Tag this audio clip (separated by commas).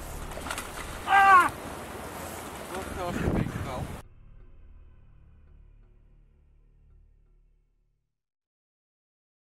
Stream, Speech